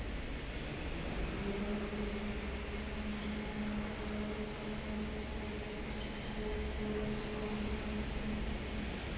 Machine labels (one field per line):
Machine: fan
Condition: normal